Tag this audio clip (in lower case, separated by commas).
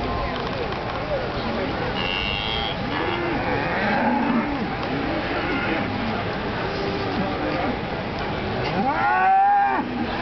moo, livestock, cattle mooing, bovinae